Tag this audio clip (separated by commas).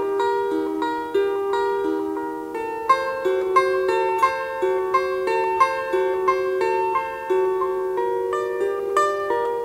Flamenco, Piano